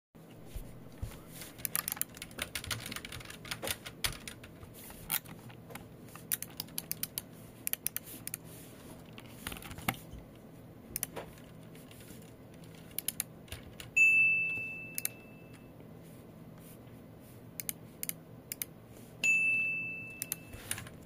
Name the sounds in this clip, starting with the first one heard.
keyboard typing, phone ringing